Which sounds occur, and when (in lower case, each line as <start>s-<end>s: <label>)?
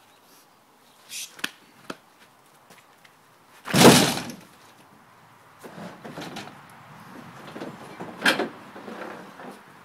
0.0s-0.2s: chirp
0.0s-9.8s: wind
1.0s-1.3s: human voice
3.6s-4.4s: thunk
4.4s-9.8s: motor vehicle (road)
4.5s-4.8s: walk
8.2s-8.5s: generic impact sounds
8.7s-9.6s: surface contact